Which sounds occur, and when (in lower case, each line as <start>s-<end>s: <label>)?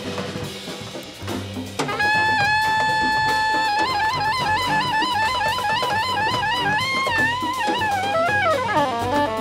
0.0s-9.4s: music